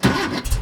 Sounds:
Engine

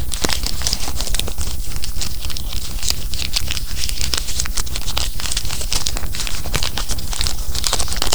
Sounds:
crinkling

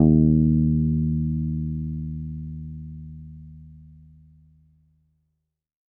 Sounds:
Plucked string instrument, Bass guitar, Music, Musical instrument, Guitar

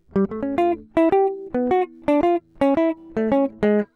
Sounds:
Guitar, Plucked string instrument, Music, Musical instrument

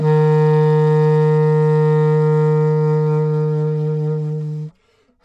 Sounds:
Music, Musical instrument, woodwind instrument

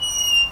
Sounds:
Squeak

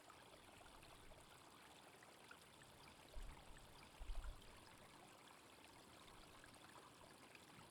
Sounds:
Stream, Water

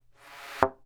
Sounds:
thud

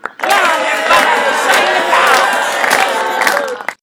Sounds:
Human group actions, Hands, Cheering, Clapping

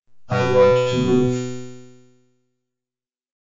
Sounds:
Speech, Human voice, Speech synthesizer

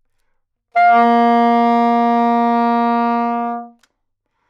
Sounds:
Musical instrument, Music, woodwind instrument

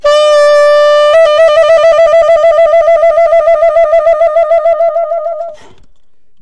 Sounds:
Musical instrument, Wind instrument, Music

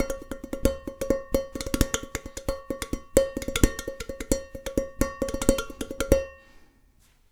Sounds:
dishes, pots and pans, Domestic sounds

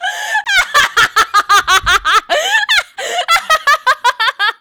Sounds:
Human voice, Laughter

